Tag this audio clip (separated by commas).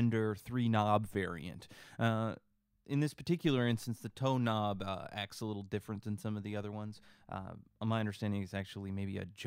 Speech